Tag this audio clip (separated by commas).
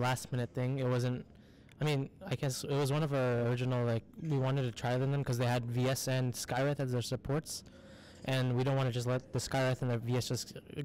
Speech